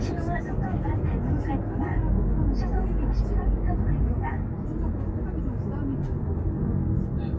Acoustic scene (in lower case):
car